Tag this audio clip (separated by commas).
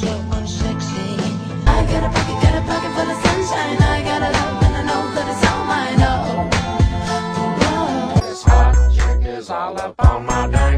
Music